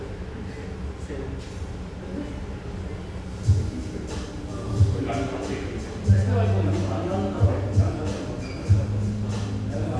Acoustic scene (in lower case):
cafe